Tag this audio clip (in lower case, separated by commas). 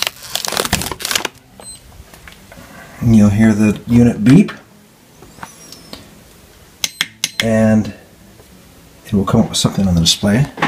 inside a small room, speech